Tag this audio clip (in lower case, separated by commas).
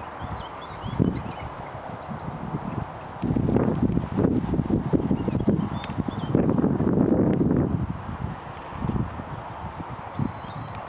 bird